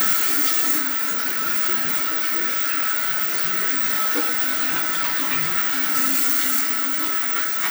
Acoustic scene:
restroom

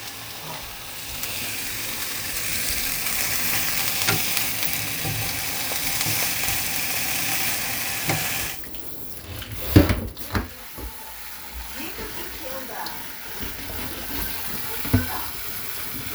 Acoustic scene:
kitchen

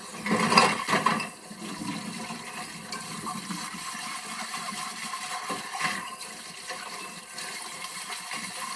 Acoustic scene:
kitchen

